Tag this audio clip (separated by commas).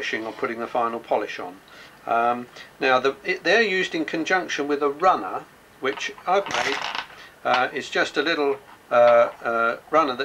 Speech